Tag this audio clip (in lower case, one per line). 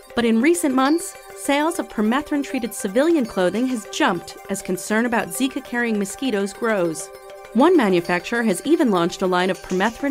music
speech